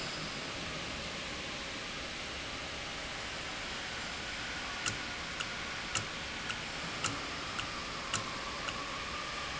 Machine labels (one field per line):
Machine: valve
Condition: normal